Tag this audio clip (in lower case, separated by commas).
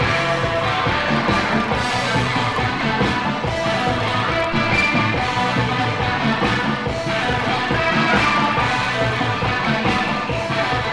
music, rock and roll